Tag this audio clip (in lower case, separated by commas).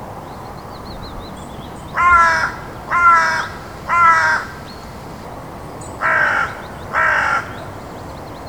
crow, wild animals, animal, bird